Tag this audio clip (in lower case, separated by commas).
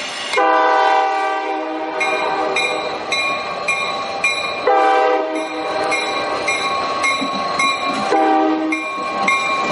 train horning